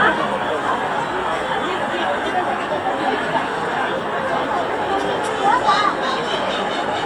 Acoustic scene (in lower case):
park